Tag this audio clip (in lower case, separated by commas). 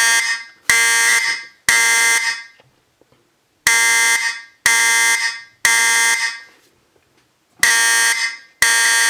alarm, fire alarm